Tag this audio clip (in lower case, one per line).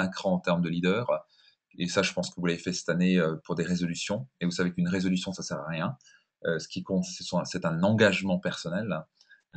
speech